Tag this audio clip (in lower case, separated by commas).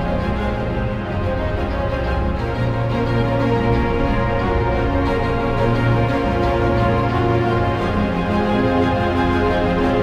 music